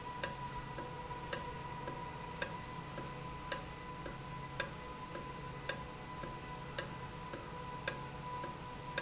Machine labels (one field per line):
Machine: valve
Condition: normal